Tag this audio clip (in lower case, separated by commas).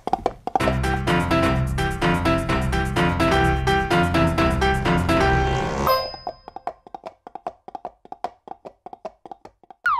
music